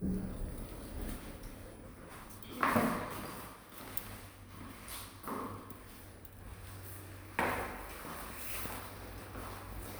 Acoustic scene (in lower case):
elevator